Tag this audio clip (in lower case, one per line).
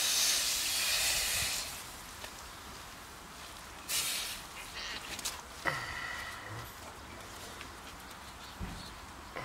hiss